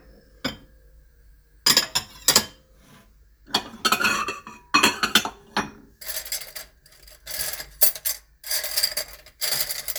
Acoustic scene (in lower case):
kitchen